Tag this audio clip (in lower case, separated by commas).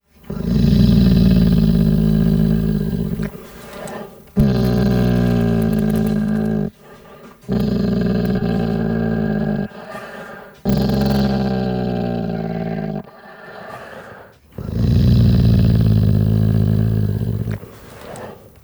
dog, pets, growling, animal